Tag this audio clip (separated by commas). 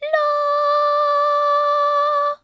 Singing, Female singing, Human voice